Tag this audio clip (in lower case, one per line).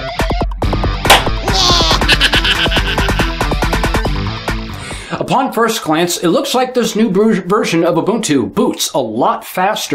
music
speech